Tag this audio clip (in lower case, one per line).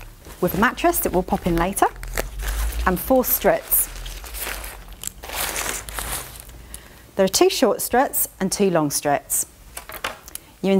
speech